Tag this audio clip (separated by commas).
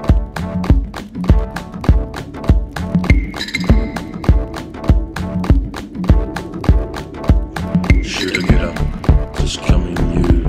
Music